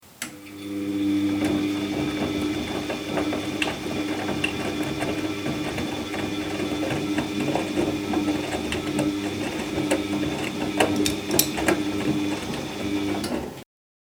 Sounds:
Engine

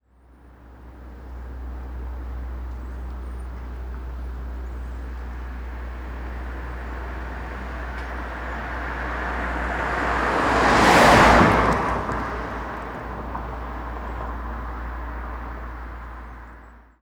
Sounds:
Car passing by, Vehicle, Motor vehicle (road), Car

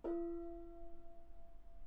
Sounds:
Percussion, Gong, Musical instrument, Music

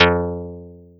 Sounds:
Musical instrument, Plucked string instrument, Guitar, Music

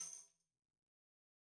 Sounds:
Musical instrument, Tambourine, Music, Percussion

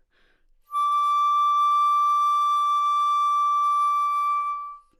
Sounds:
Musical instrument, Music, Wind instrument

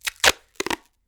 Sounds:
Packing tape, Domestic sounds

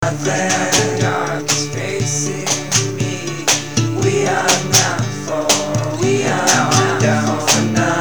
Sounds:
Percussion, Plucked string instrument, Musical instrument, Guitar, Music, Human voice, Acoustic guitar, Drum

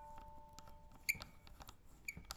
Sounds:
Squeak

